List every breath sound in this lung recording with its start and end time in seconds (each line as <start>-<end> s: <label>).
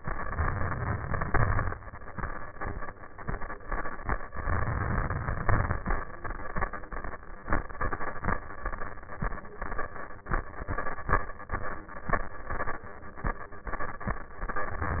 0.00-1.23 s: inhalation
1.29-2.12 s: exhalation
4.32-5.48 s: inhalation
5.52-6.35 s: exhalation